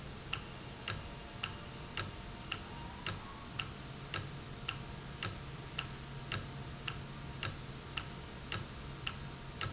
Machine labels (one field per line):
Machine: valve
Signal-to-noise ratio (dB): 0 dB